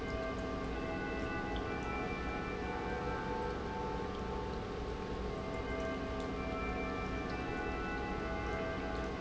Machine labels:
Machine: pump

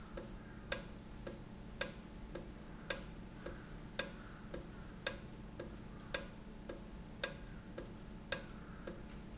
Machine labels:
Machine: valve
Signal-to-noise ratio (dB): 6 dB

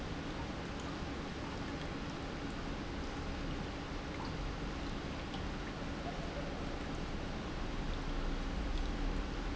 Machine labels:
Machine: pump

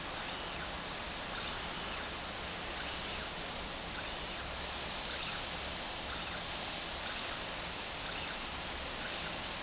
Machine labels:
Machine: slide rail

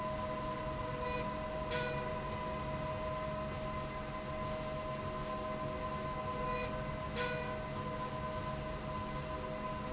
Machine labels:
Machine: slide rail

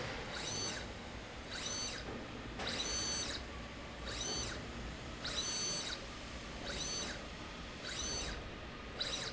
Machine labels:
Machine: slide rail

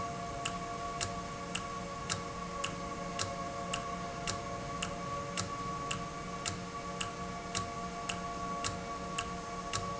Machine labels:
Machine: valve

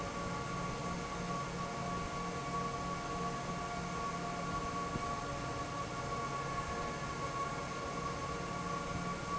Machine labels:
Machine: fan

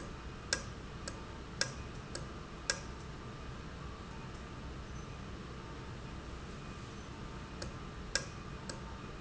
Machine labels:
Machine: valve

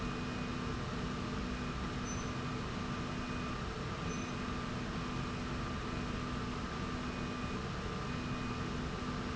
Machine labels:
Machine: slide rail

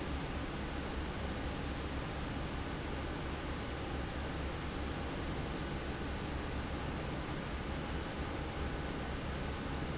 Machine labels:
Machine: fan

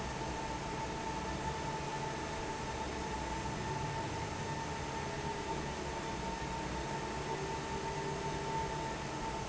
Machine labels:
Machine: fan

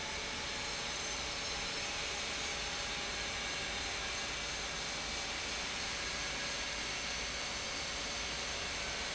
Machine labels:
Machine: pump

